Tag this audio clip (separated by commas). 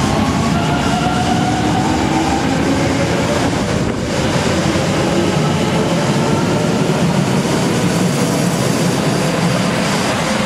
Vehicle, Rail transport, train wagon, Train